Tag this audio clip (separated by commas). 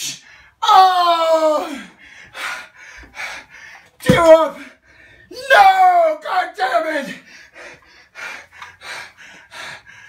Speech